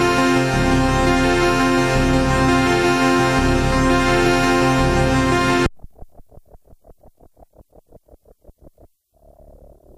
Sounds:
electric piano, synthesizer, piano, musical instrument, keyboard (musical), music

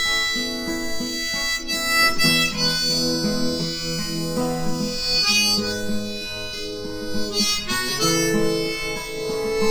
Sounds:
music

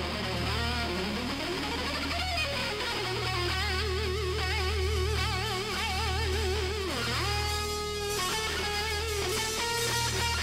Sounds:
plucked string instrument, strum, musical instrument, music, electric guitar, guitar

